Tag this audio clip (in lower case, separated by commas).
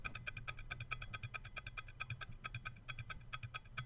clock, mechanisms, tick-tock